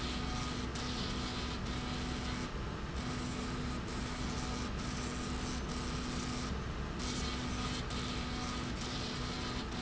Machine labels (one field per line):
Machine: slide rail